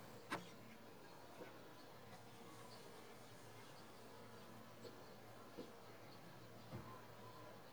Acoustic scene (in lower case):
park